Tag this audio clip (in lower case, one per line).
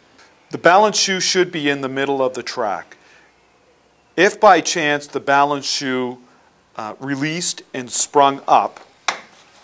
speech
inside a small room